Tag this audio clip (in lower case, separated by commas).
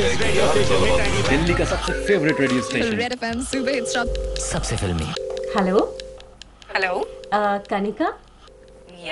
speech, music, radio